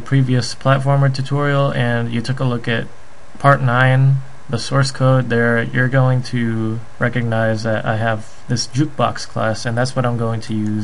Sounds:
Speech

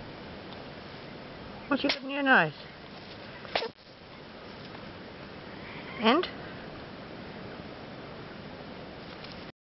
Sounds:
Speech

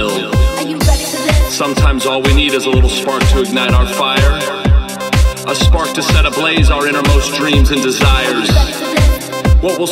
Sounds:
Speech, Music

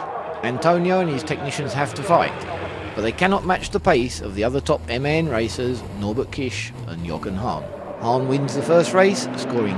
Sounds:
Vehicle, Speech, Truck

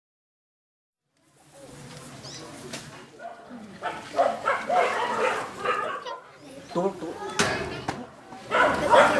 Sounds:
Speech

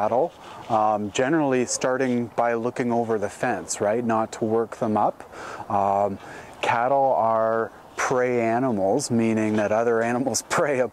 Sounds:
Speech

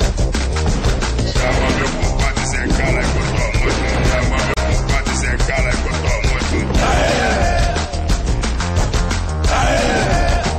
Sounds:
Music, Background music

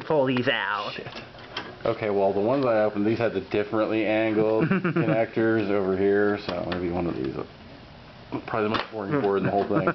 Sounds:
Speech

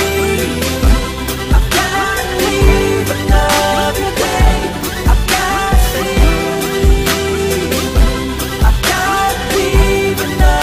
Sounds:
Music

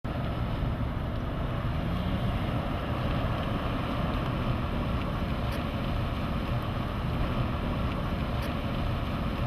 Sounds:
Car, Vehicle

